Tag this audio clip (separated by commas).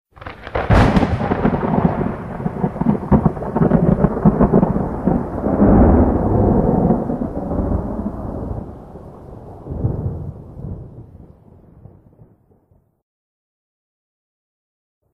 Thunderstorm, Thunder